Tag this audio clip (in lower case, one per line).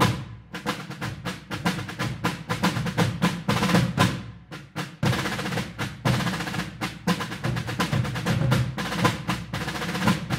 playing snare drum